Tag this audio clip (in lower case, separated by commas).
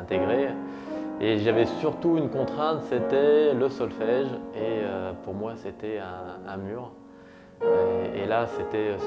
music, speech